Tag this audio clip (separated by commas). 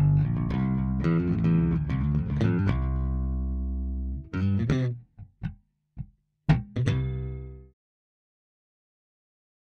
Music